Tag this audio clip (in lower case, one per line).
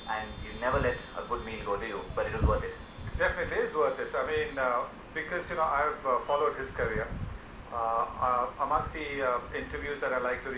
speech